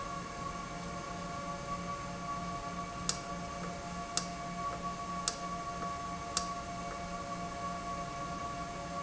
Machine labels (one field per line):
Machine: valve